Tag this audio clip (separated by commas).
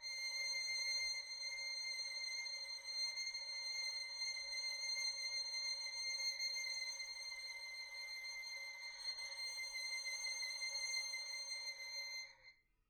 Musical instrument, Music, Bowed string instrument